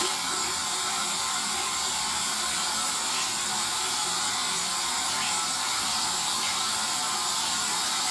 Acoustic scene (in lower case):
restroom